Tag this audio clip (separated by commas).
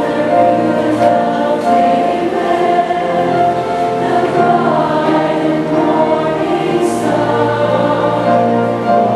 Music, Choir